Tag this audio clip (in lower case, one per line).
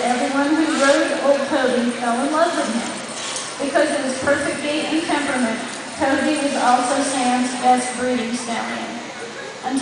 speech